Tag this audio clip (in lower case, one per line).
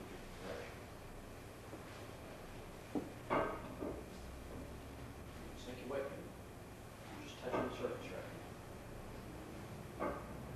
speech